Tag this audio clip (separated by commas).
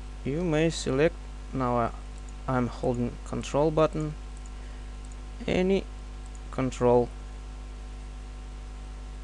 Speech